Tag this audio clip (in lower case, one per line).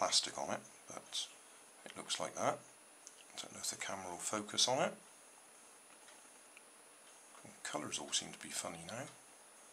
speech